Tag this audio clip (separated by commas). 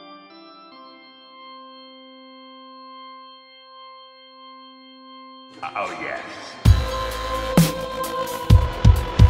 Music, Dubstep, Electronic music, Speech